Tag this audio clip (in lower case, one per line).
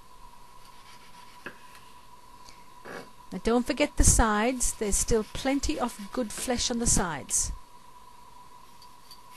speech